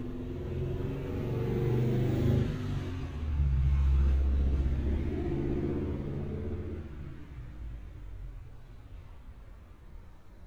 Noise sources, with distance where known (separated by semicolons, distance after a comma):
engine of unclear size, near